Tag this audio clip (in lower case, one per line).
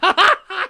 laughter
human voice